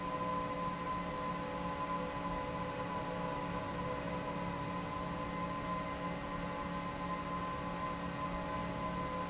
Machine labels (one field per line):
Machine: fan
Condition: normal